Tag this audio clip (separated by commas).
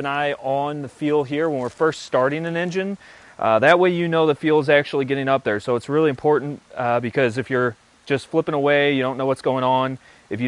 Speech